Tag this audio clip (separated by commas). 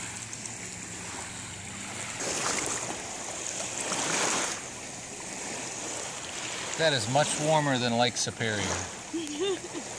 Speech, splashing water, Splash